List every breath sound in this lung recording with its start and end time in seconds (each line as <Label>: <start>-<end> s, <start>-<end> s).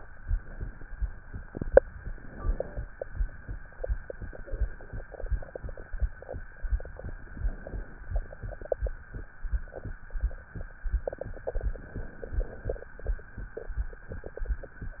Inhalation: 1.97-2.87 s, 7.26-8.16 s, 11.76-12.66 s